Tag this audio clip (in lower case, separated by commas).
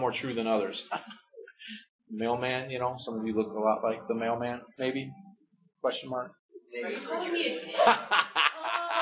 speech, chuckle, man speaking